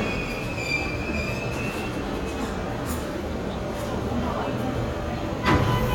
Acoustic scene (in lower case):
subway station